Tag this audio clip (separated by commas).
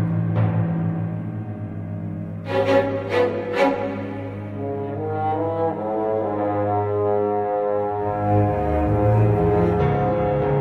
Trombone, Brass instrument